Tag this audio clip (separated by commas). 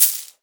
Coin (dropping), Domestic sounds